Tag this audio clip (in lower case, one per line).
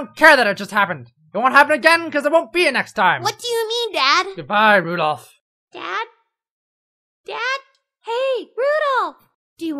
speech